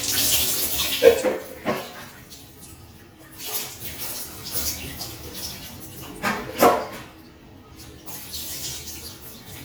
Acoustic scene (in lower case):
restroom